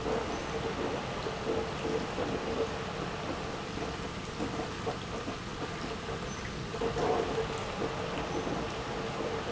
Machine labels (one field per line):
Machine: pump